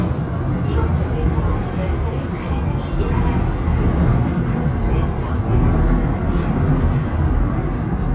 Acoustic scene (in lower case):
subway train